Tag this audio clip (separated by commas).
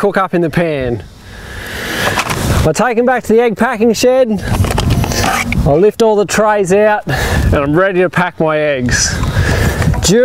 Speech